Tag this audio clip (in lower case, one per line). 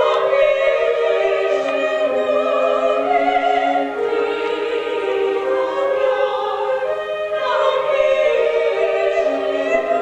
music
choir
female singing